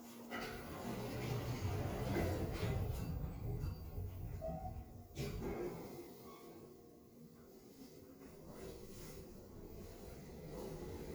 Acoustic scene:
elevator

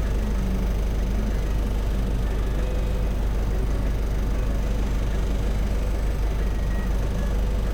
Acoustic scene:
bus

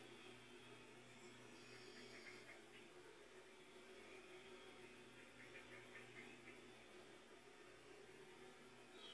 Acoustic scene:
park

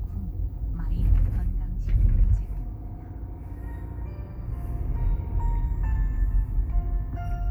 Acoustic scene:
car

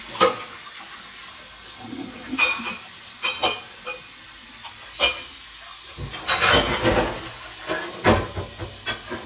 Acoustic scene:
kitchen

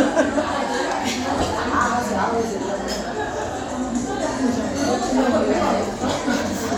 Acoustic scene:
crowded indoor space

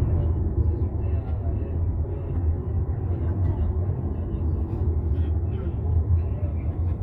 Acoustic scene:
car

